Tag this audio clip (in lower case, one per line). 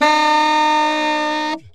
woodwind instrument
musical instrument
music